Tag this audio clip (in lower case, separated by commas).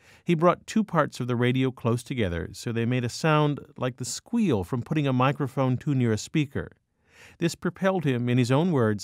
speech